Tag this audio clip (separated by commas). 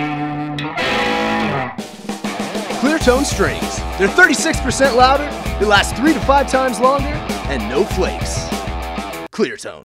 Music, Speech